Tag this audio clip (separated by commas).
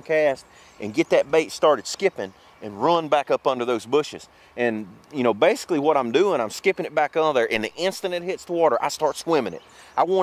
Speech